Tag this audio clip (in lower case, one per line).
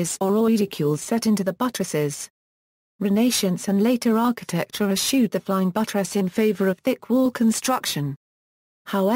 speech